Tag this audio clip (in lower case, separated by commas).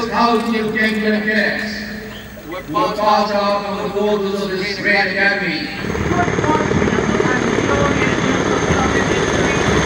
helicopter